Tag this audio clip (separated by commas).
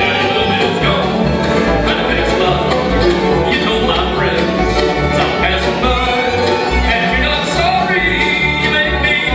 Music, Bluegrass, Country